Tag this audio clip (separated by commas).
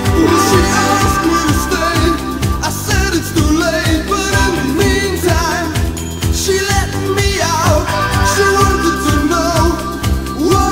Music